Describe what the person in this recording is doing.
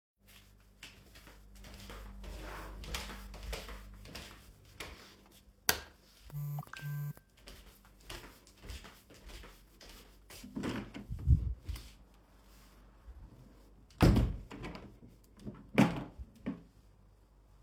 I came into the office, turned the light on. After that I received some messages. I went to the window and adjusted it.